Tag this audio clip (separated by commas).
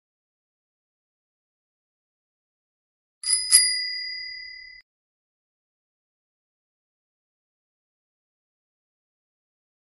Bicycle bell